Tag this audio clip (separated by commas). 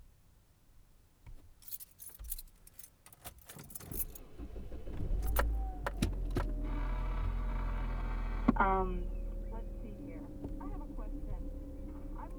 Vehicle, Motor vehicle (road)